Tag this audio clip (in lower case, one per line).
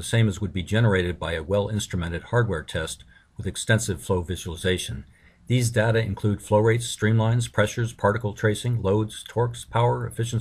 speech